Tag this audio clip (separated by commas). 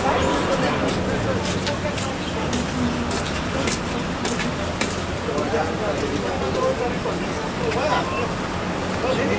Vehicle, Speech